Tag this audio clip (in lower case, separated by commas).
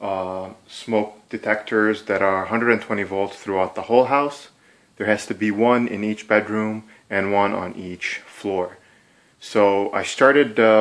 speech